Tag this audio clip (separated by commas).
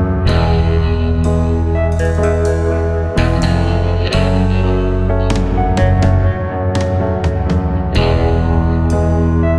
Music